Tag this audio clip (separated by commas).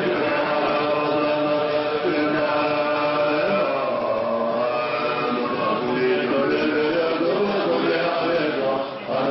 Chant, Vocal music